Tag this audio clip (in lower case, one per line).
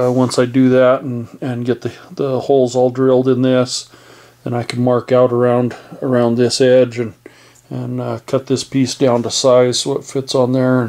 speech